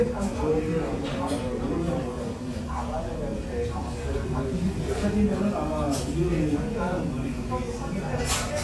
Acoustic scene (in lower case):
crowded indoor space